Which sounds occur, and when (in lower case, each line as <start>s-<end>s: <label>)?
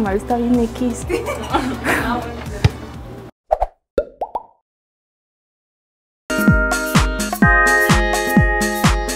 0.0s-1.0s: female speech
1.0s-2.2s: laughter
1.8s-3.2s: female speech
3.4s-3.7s: sound effect
3.9s-4.8s: sound effect
6.3s-9.1s: music